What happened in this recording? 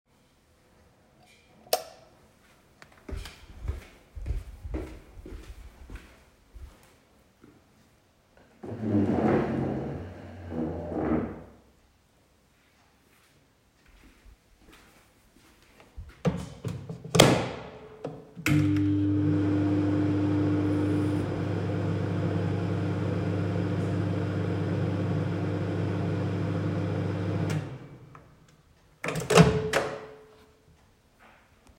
i turned on the light. I walked down the hallway to the kitchen and moved the chair. Then I used the microwave.